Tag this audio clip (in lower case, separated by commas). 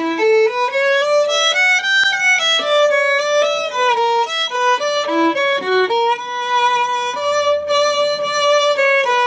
fiddle, bowed string instrument